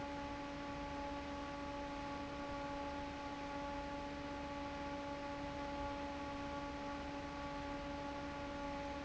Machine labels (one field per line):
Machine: fan